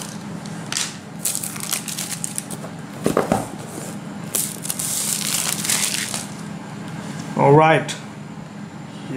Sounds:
crackle
speech
inside a small room

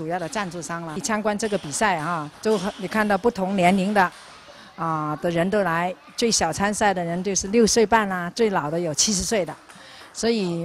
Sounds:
speech

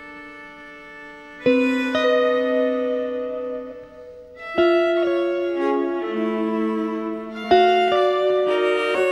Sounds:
music
classical music
bowed string instrument
violin

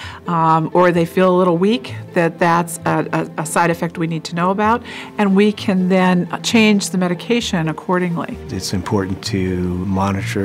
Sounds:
music
speech

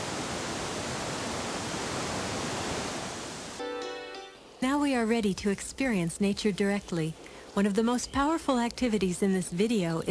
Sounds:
music
speech

